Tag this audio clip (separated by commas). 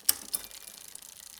Vehicle, Mechanisms, Bicycle